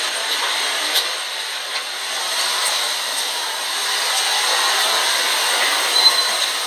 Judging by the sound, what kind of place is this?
subway station